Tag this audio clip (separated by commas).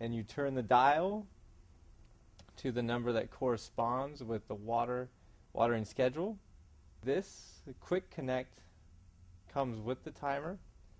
Speech